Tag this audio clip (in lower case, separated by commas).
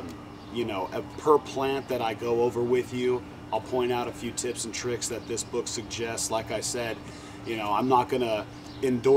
speech